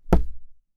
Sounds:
thump, tap

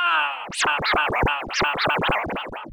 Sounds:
musical instrument, scratching (performance technique), music

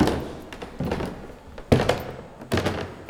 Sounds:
squeak, wood, footsteps

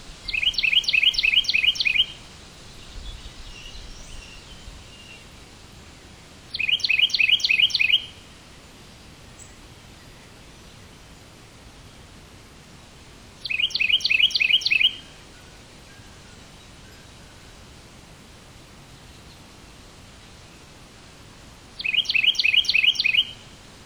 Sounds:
animal, tweet, bird call, bird, wild animals

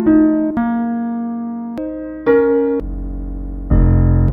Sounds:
musical instrument, music, keyboard (musical), piano

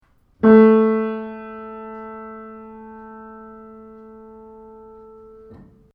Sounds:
musical instrument, music, keyboard (musical)

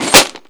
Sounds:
tools

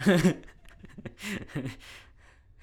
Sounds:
laughter, human voice

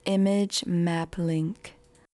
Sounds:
woman speaking, human voice, speech

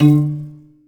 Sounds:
musical instrument, keyboard (musical), music, piano

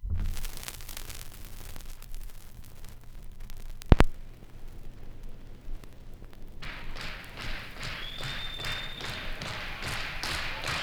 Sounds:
crackle

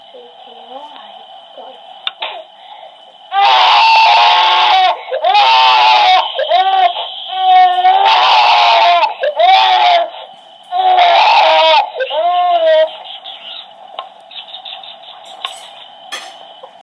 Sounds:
human voice, crying

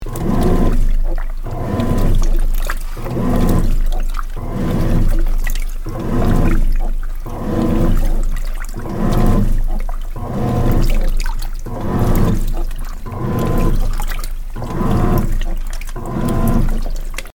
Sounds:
engine

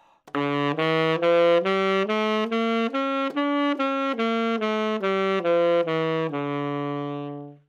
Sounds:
wind instrument, music, musical instrument

